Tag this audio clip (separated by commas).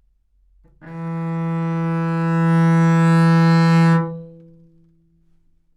Musical instrument, Music, Bowed string instrument